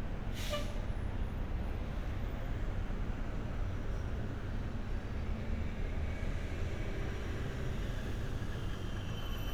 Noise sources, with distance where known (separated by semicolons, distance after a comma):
engine of unclear size